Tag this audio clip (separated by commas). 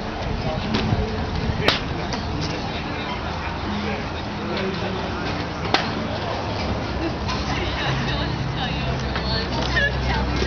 Speech